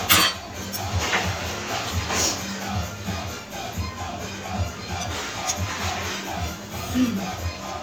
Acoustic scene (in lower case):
restaurant